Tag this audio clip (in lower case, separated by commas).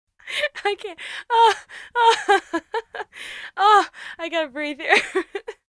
chortle, human voice, laughter